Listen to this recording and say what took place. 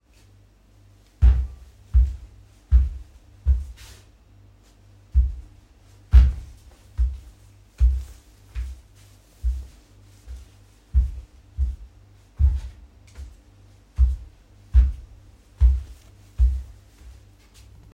I walked through the hallway and used the light switch during the movement.